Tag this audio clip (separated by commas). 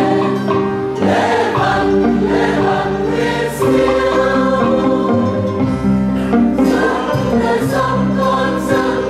Music, Singing, Choir, Christian music, Gospel music